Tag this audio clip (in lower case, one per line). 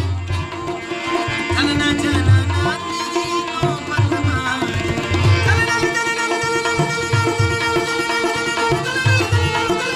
drum
tabla
percussion